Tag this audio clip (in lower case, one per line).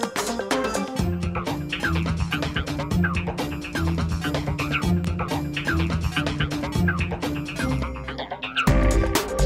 music